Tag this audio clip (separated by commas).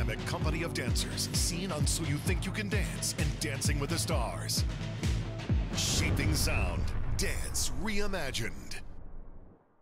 Music, Speech, Sound effect